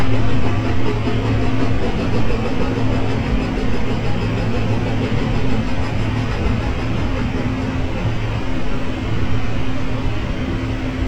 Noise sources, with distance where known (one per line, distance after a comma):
unidentified impact machinery, near